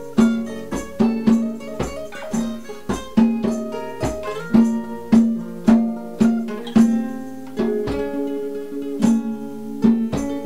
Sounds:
electric guitar, music, musical instrument, guitar, plucked string instrument

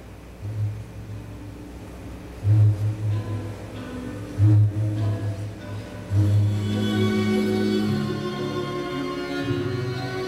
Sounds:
inside a large room or hall, music

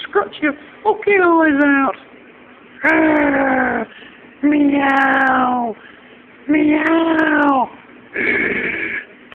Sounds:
speech

